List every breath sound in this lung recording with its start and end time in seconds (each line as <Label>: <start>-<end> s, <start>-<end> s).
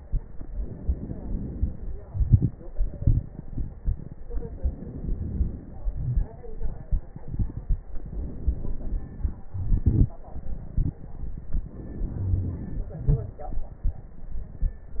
Inhalation: 0.21-2.03 s, 4.16-5.87 s, 7.98-9.51 s, 11.70-13.02 s
Exhalation: 2.06-4.16 s, 5.90-7.96 s, 9.54-11.69 s, 13.03-15.00 s
Wheeze: 12.13-12.61 s
Crackles: 0.21-2.03 s, 2.04-4.14 s, 4.16-5.87 s, 5.90-7.96 s, 7.98-9.51 s, 9.54-11.69 s, 13.03-15.00 s